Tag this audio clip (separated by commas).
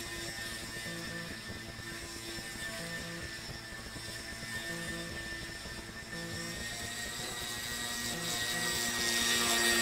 Water vehicle, speedboat